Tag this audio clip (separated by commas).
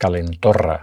Speech, Human voice, Male speech